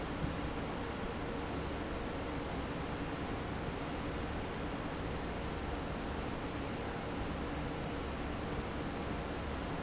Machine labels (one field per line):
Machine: fan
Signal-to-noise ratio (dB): -6 dB